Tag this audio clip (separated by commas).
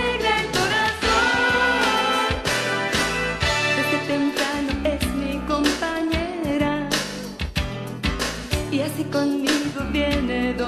Music